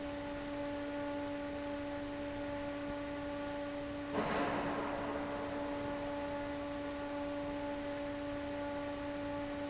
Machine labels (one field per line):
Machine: fan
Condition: abnormal